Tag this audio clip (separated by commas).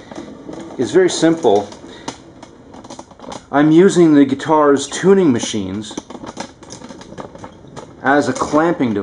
inside a small room, Speech